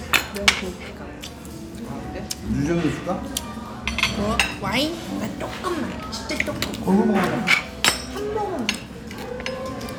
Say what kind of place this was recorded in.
restaurant